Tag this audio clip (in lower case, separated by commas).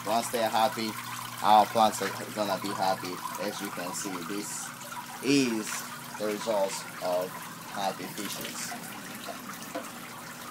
outside, urban or man-made, speech